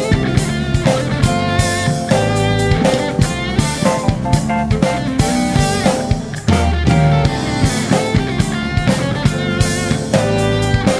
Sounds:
music
steel guitar

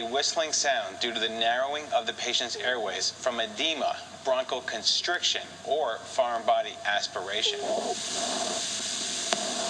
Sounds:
speech

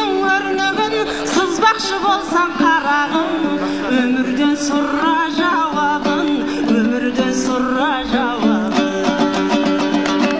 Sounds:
sitar
music
singing

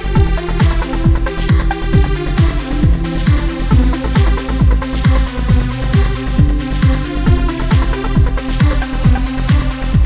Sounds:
music
electronic music
trance music

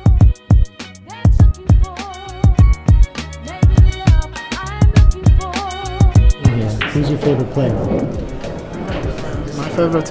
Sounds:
music
speech

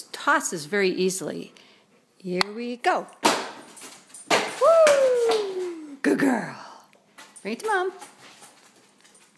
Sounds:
speech

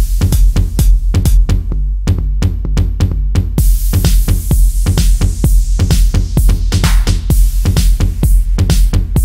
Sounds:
electronica
electronic music
trance music
dubstep
electronic dance music
music
techno
house music

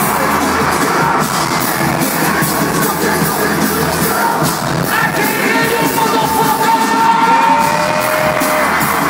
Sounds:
exciting music
music

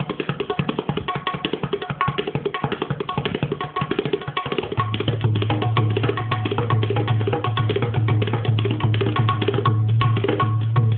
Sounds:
playing tabla

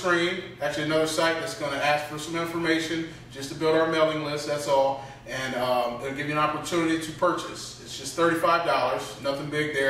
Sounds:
speech

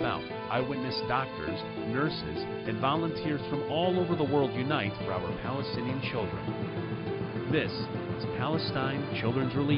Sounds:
speech
music

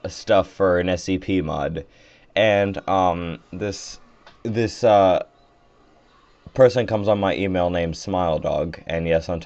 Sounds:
speech

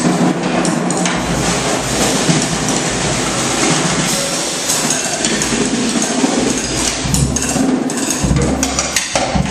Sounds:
drum kit
musical instrument
drum
music

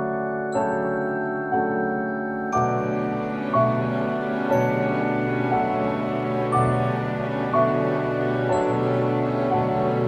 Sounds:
music

